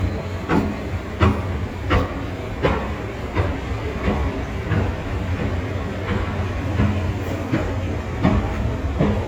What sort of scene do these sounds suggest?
subway station